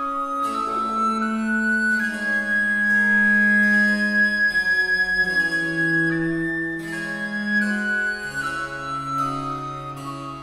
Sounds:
bowed string instrument
cello

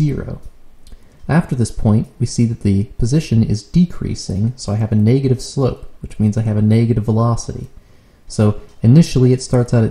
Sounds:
speech

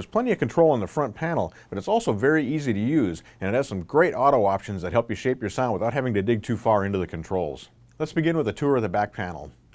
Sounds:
speech

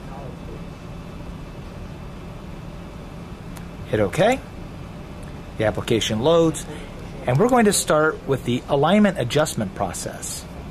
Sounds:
speech

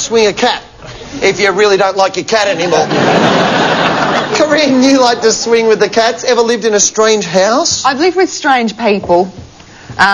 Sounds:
speech

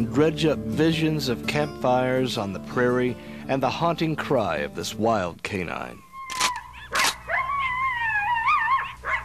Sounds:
speech
music
canids

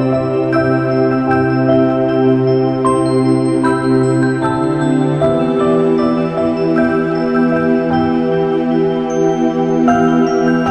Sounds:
music
new-age music

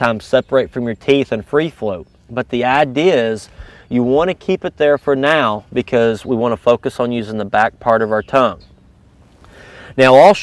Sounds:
speech

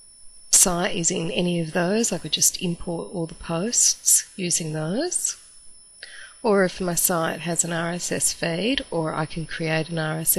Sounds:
speech

